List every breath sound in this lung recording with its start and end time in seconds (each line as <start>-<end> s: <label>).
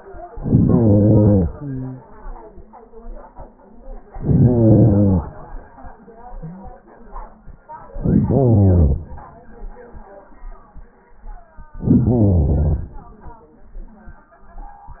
0.28-1.47 s: inhalation
1.48-2.67 s: exhalation
4.03-5.22 s: inhalation
7.83-9.12 s: inhalation
11.75-13.04 s: inhalation